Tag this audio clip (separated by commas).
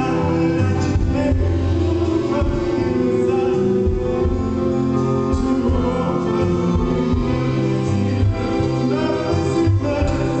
Music